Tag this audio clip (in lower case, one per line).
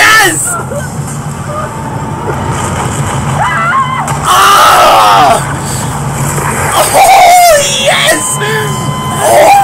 speech
outside, urban or man-made